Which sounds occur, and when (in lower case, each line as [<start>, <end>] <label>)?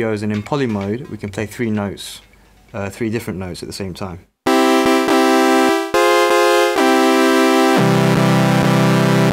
[0.00, 1.29] music
[0.00, 2.23] man speaking
[0.00, 9.32] background noise
[2.70, 4.21] man speaking
[4.45, 9.32] music